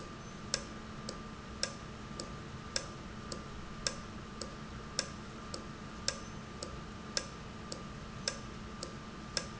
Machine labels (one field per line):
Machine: valve